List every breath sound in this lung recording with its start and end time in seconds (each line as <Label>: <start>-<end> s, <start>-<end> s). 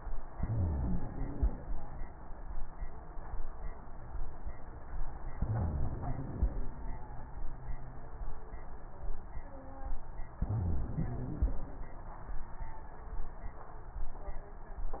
Inhalation: 0.30-1.54 s, 5.38-6.61 s, 10.45-11.68 s
Wheeze: 0.30-1.54 s, 5.38-6.61 s, 10.45-11.68 s